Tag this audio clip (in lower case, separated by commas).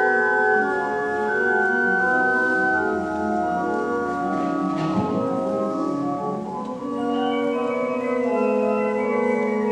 musical instrument, music